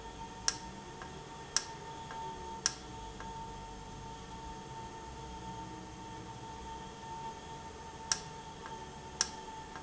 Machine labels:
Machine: valve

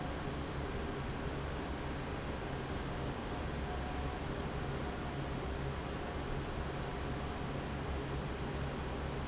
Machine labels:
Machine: fan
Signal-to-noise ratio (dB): -6 dB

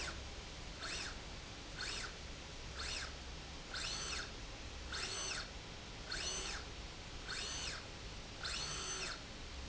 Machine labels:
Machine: slide rail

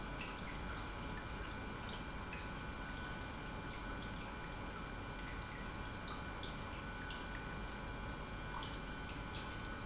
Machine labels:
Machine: pump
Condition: normal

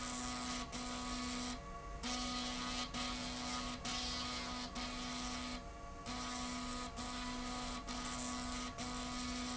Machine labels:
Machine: slide rail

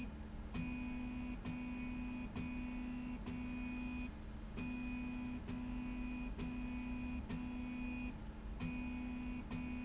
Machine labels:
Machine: slide rail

